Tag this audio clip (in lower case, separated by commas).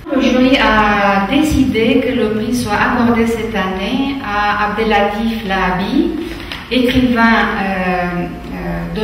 speech